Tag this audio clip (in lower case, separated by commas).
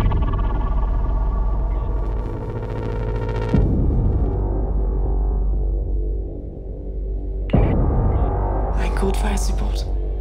speech, music